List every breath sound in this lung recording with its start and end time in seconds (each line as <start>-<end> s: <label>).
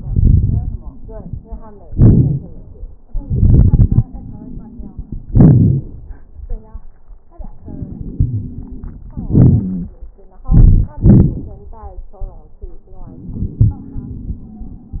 1.88-2.93 s: exhalation
1.88-2.93 s: crackles
3.08-5.25 s: inhalation
3.08-5.25 s: crackles
5.26-6.13 s: exhalation
5.26-6.13 s: crackles
7.65-9.12 s: inhalation
7.65-9.12 s: wheeze
9.12-9.96 s: exhalation
9.34-9.96 s: wheeze
13.05-15.00 s: inhalation
13.05-15.00 s: wheeze